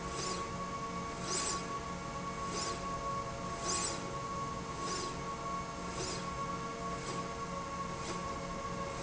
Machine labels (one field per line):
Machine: slide rail